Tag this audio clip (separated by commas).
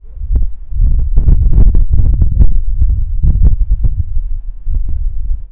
Wind